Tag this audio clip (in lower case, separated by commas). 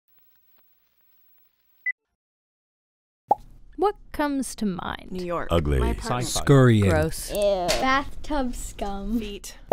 plop, speech